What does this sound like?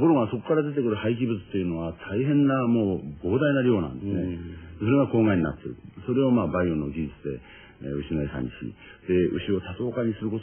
A man giving a speech